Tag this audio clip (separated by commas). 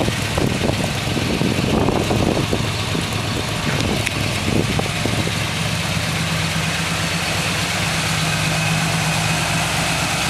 Vehicle